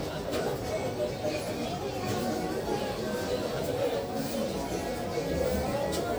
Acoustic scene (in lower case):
crowded indoor space